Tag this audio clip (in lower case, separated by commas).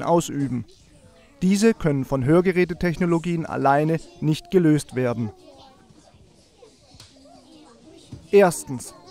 monologue, man speaking, speech